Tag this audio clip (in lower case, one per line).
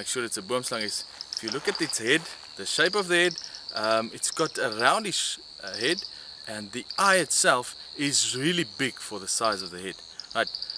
outside, rural or natural
speech